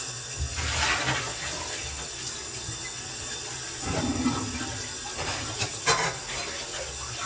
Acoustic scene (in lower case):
kitchen